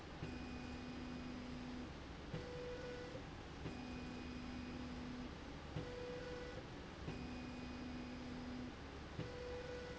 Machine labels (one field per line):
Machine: slide rail